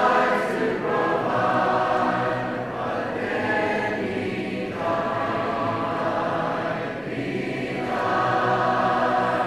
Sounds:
female singing, choir, male singing

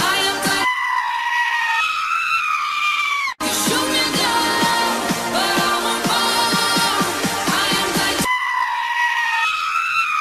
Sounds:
animal, music

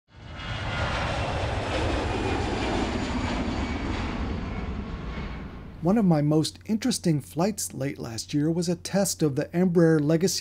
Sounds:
airplane flyby

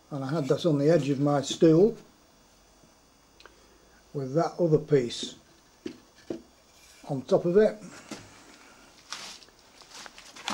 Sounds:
speech

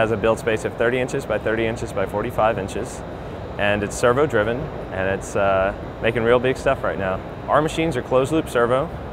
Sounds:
speech

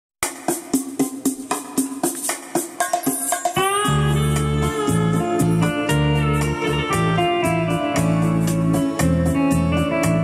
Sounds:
piano, keyboard (musical), music, classical music, musical instrument

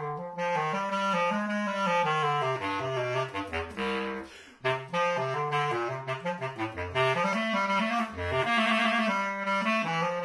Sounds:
musical instrument, saxophone, playing saxophone, music, woodwind instrument

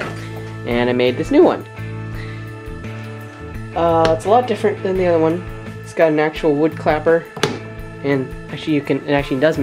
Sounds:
speech, music

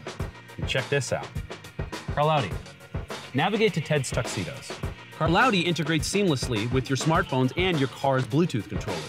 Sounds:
speech, music

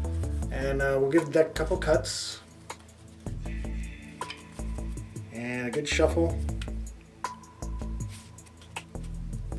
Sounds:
speech, music

